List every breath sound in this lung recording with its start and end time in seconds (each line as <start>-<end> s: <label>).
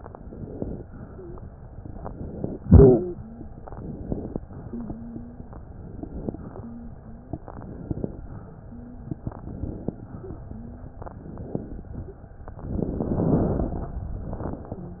0.00-0.80 s: inhalation
0.90-1.74 s: exhalation
1.10-1.44 s: wheeze
1.76-2.56 s: inhalation
2.60-3.60 s: exhalation
2.60-3.60 s: wheeze
3.60-4.40 s: inhalation
4.44-5.44 s: exhalation
4.64-5.44 s: wheeze
5.54-6.34 s: inhalation
6.50-7.30 s: exhalation
6.50-7.30 s: wheeze
7.32-8.24 s: inhalation
8.32-9.18 s: exhalation
8.66-9.18 s: wheeze
9.20-10.00 s: inhalation
10.08-11.02 s: exhalation
10.16-11.02 s: wheeze
11.06-11.86 s: inhalation